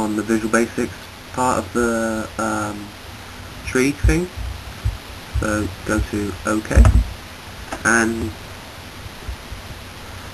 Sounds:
Speech

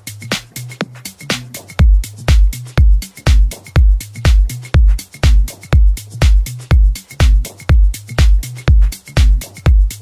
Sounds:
Music

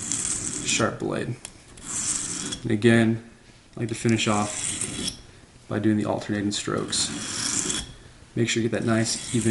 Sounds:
sharpen knife

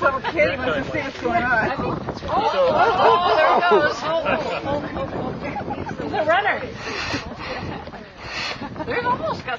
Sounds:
Speech, speech babble

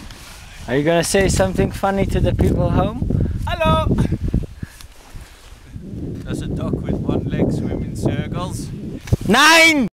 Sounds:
Speech

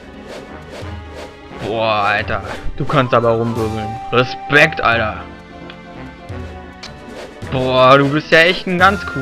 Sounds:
Music, Speech

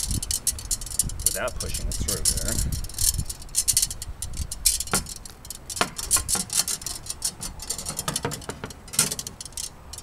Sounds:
Speech

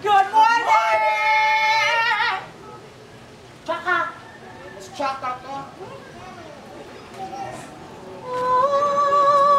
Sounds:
Speech

